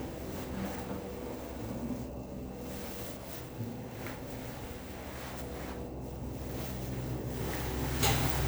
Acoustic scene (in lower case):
elevator